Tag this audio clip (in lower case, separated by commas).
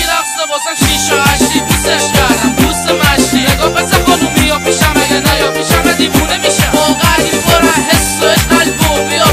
soundtrack music, music